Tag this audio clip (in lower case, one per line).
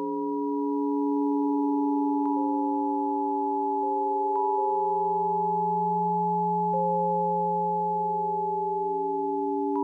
sine wave